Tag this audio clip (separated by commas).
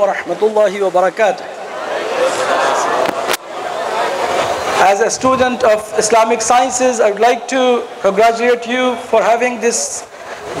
Narration, Speech, man speaking